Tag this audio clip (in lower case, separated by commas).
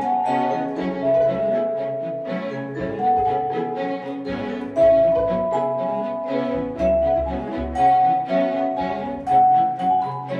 orchestra, violin, classical music, musical instrument, music, vibraphone